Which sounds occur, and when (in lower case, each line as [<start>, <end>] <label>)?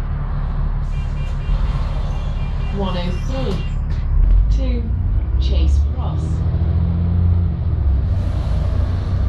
[0.00, 9.25] motor vehicle (road)
[0.87, 3.68] honking
[2.73, 3.66] woman speaking
[4.44, 4.82] woman speaking
[5.33, 6.56] woman speaking
[6.39, 9.25] vroom